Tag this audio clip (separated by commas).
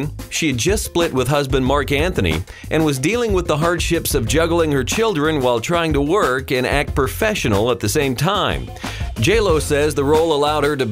Music, Speech